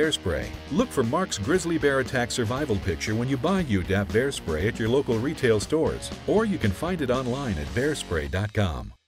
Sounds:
Music, Speech

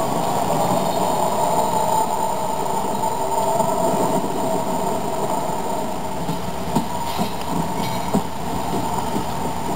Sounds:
Sound effect

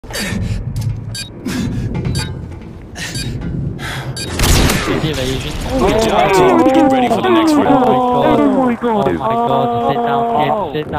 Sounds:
Speech

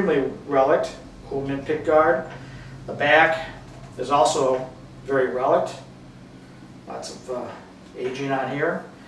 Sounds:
Speech

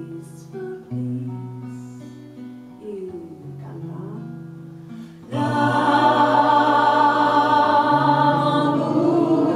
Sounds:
Speech, Mantra, Music

